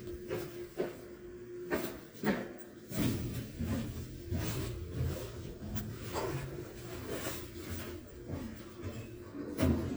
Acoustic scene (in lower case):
elevator